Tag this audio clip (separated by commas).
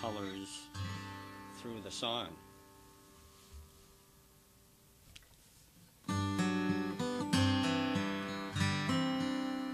Strum, Guitar, Musical instrument, Acoustic guitar, Music